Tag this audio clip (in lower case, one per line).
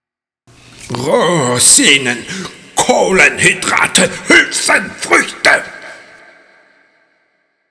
speech
human voice